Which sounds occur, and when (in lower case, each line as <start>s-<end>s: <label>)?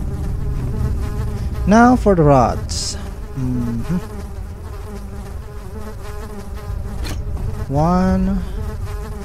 0.0s-9.2s: buzz
0.0s-9.2s: video game sound
1.6s-3.0s: man speaking
3.3s-4.2s: human voice
7.0s-7.2s: generic impact sounds
7.7s-8.3s: man speaking
8.3s-8.6s: breathing